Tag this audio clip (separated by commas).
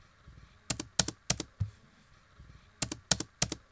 Domestic sounds, Computer keyboard, Typing